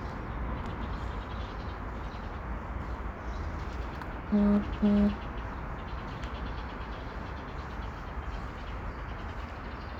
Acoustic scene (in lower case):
residential area